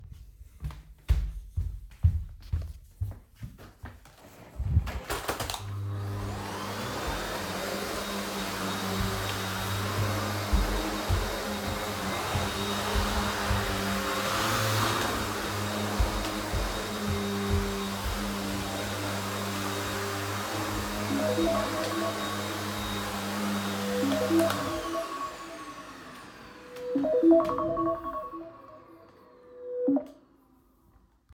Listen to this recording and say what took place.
I walked across the living room to the vacuum cleaner and turned it on. While vacuuming, my mobile phone rang, I turned off the vaccuum cleaner and answered the phone